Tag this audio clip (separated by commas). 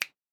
Finger snapping, Hands